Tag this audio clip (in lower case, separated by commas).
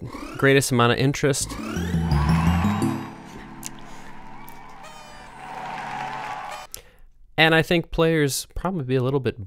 speech, music, sound effect